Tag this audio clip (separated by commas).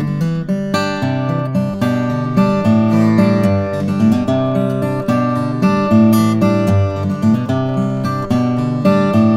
Music, Musical instrument, Acoustic guitar, Plucked string instrument, Strum, Guitar